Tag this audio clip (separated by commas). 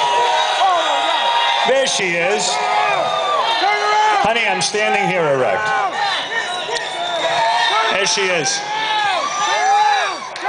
man speaking, monologue, Speech